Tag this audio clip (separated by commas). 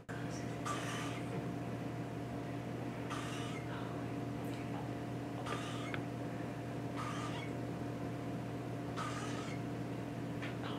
Sound effect